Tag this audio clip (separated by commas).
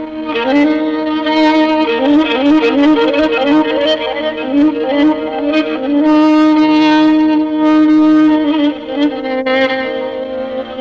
Music, Musical instrument, fiddle